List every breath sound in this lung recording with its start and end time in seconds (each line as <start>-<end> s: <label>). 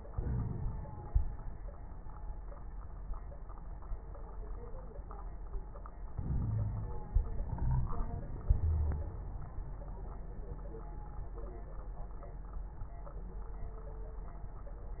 0.08-1.27 s: inhalation
0.08-1.27 s: crackles
6.12-7.11 s: inhalation
6.21-6.97 s: wheeze
8.60-9.15 s: wheeze